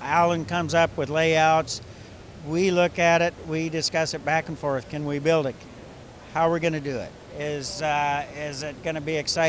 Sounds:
Speech

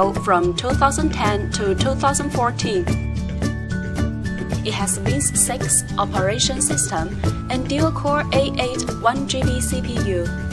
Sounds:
Speech, Music, Background music

